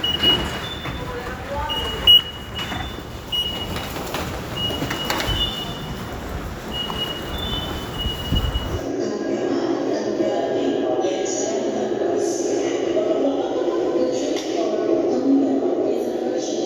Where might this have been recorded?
in a subway station